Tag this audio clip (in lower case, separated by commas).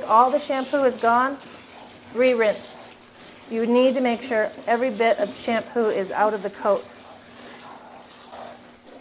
inside a small room, speech